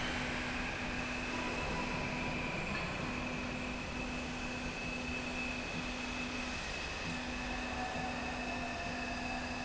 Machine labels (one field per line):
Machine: slide rail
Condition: normal